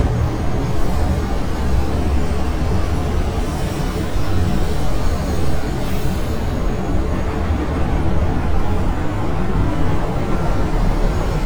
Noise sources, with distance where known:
medium-sounding engine, near

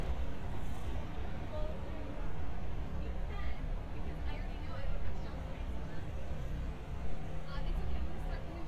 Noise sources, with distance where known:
person or small group talking, near

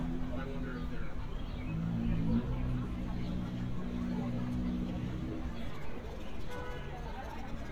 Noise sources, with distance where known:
car horn
person or small group talking, near

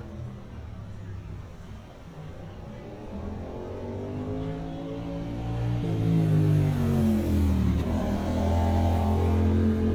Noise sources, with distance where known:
small-sounding engine

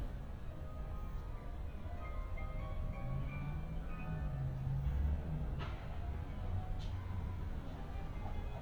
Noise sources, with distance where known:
music from a fixed source, far

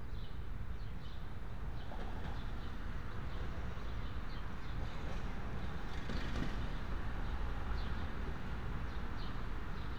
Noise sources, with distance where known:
background noise

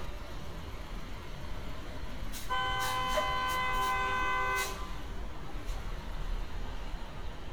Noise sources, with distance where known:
engine of unclear size
car horn, near

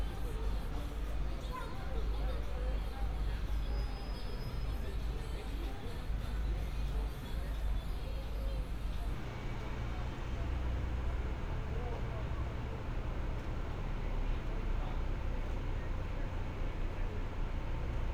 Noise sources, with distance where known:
person or small group talking

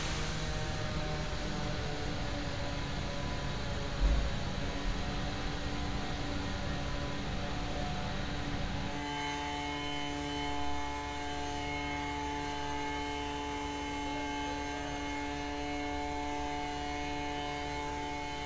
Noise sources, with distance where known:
small or medium rotating saw

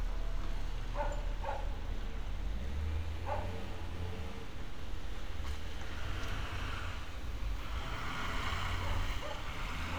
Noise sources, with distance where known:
engine of unclear size
dog barking or whining, near

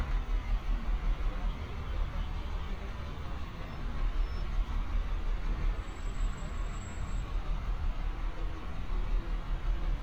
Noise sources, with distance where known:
medium-sounding engine

